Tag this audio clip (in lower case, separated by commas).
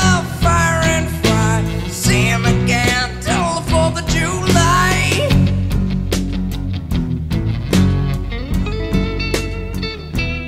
slide guitar, music, inside a large room or hall